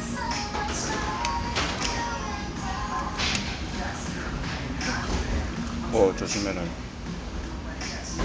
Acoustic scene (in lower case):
restaurant